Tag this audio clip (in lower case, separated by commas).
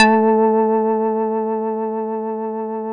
organ, musical instrument, keyboard (musical), music